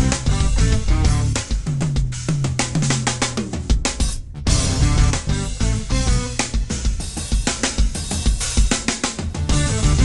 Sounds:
cymbal
rock music
drum
drum kit
music
musical instrument

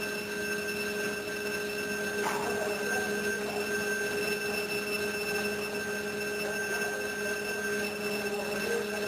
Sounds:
speech

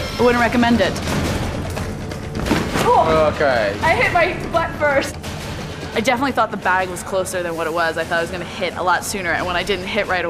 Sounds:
speech
music

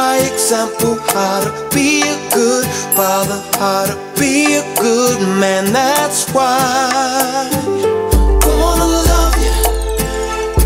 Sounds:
music

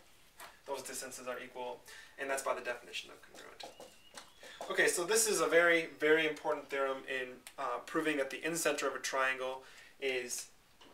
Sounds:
speech

